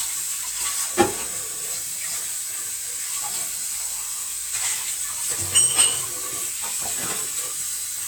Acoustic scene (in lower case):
kitchen